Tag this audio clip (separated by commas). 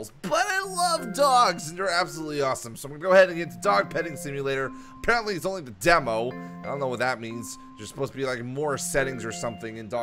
Speech, Music